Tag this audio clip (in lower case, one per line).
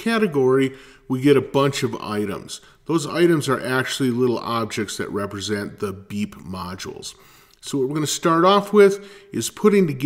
speech